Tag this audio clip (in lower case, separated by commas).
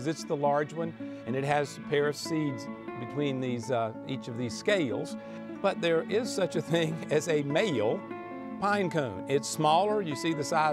music, man speaking, speech